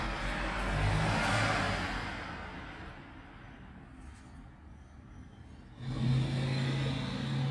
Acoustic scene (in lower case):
street